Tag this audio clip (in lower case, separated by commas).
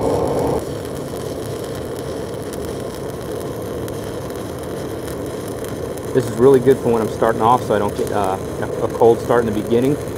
arc welding